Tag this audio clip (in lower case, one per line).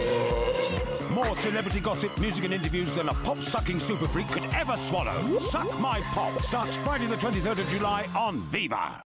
speech
music